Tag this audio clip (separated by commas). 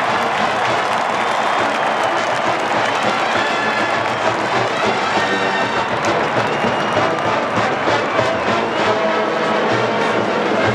people marching